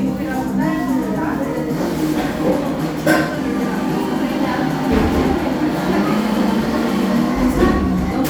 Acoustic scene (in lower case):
cafe